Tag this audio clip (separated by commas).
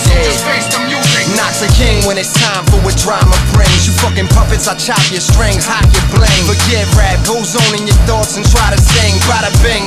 Funk, Pop music, Music